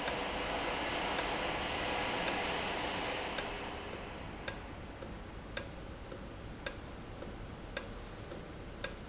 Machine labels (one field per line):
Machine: valve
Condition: normal